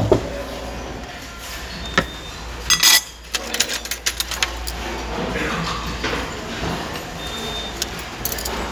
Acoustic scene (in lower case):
restaurant